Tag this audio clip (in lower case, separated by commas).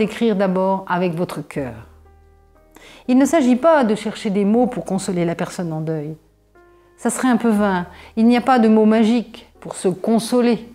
speech, music